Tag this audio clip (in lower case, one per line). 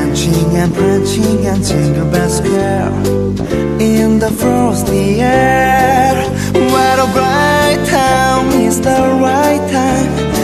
music